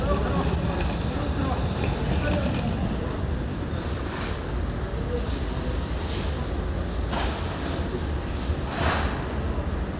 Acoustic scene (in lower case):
residential area